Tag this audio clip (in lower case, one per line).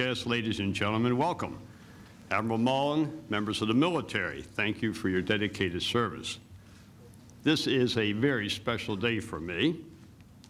man speaking
monologue
speech